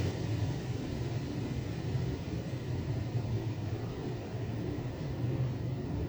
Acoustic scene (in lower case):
elevator